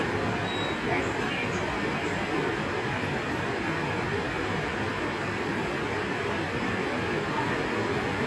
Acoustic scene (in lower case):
subway station